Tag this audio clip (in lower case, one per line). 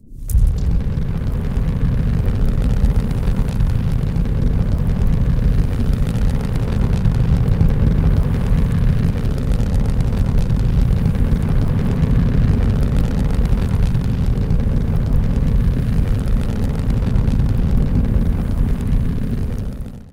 fire